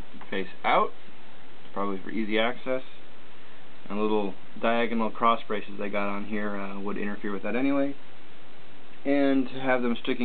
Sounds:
speech

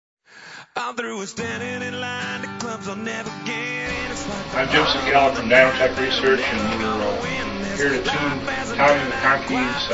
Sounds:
speech
music

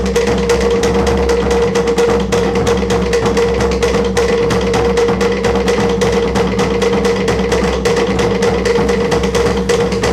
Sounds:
music
funny music

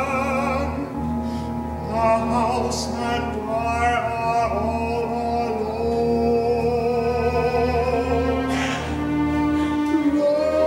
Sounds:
bowed string instrument
violin
double bass
music
classical music

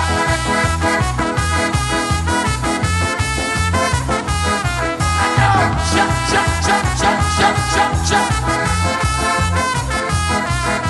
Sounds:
orchestra
music

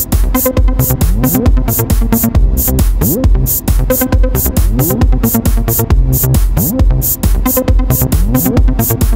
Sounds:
music

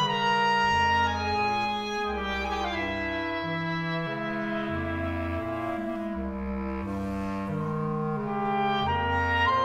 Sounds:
playing clarinet

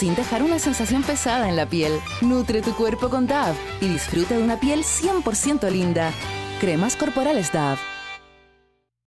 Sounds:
music
speech

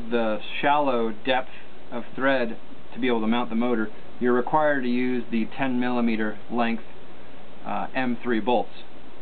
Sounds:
speech

